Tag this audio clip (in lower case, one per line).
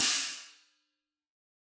cymbal
musical instrument
music
hi-hat
percussion